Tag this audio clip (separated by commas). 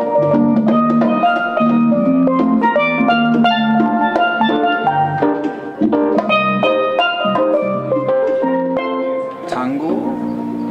Music, Steelpan, Musical instrument, Speech